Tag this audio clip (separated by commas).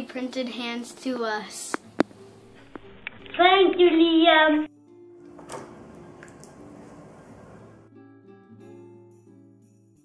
Child speech, Music, Speech